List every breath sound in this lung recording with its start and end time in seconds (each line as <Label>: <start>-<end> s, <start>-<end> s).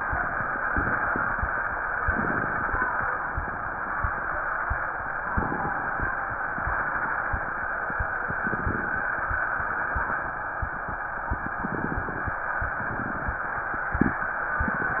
Inhalation: 2.03-3.07 s, 5.29-6.16 s, 8.25-9.12 s, 11.34-12.41 s
Exhalation: 12.66-13.43 s
Crackles: 2.04-3.08 s, 5.25-6.13 s, 8.25-9.12 s, 11.34-12.41 s, 12.66-13.43 s